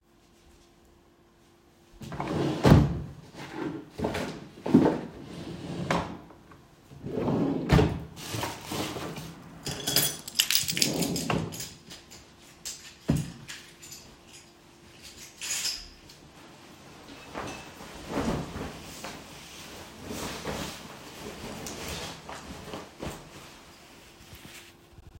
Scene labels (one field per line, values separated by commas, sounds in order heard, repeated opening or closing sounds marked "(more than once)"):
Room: hallway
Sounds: wardrobe or drawer (more than once), keys